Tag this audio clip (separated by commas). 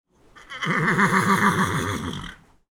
Animal, livestock